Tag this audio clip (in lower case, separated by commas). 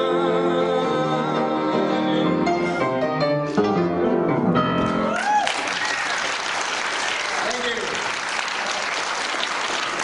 classical music, piano, bluegrass, music, speech, musical instrument